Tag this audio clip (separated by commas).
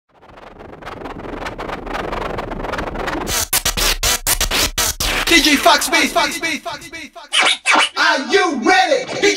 Music, Scratching (performance technique)